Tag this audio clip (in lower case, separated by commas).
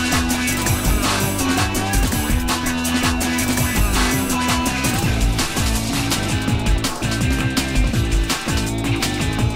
theme music, music